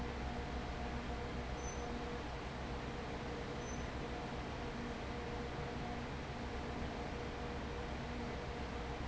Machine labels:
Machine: fan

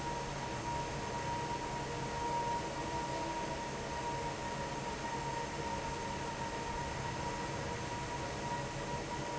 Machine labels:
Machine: fan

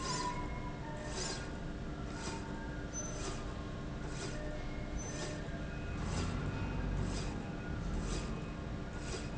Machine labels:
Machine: slide rail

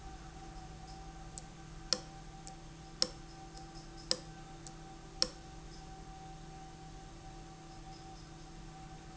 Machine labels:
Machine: valve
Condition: abnormal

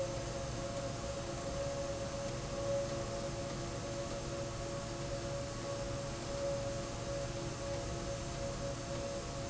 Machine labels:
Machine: slide rail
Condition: abnormal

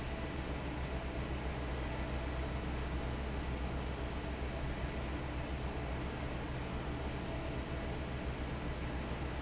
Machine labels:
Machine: fan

